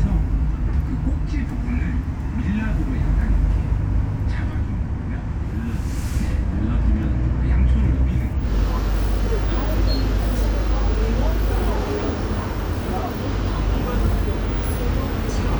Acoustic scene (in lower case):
bus